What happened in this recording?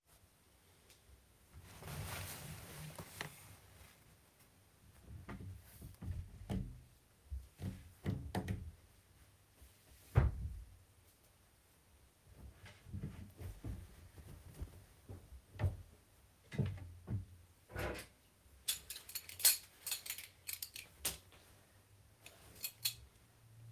looked through my clothing on the coat section, then proceeded to open the wardrobe drawer and grabed some pants, and grabed my belt afterwards